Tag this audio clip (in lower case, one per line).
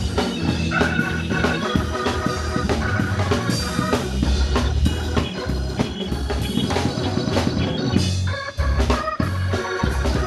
music